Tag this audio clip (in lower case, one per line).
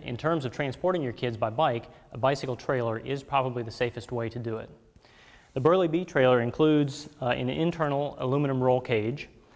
speech